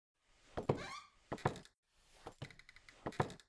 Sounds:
footsteps

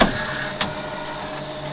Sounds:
mechanisms
printer

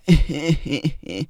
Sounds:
human voice
laughter

